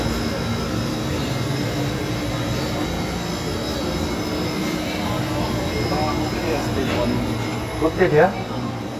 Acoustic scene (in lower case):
cafe